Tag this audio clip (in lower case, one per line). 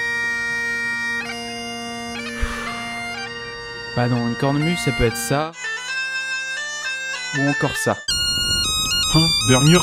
playing bagpipes